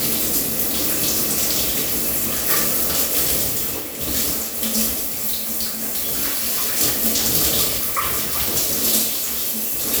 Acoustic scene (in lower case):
restroom